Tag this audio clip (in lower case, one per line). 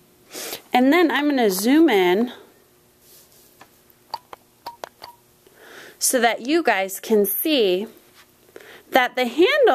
speech